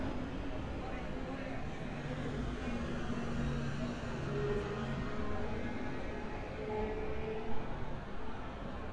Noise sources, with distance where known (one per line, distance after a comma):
large-sounding engine
unidentified human voice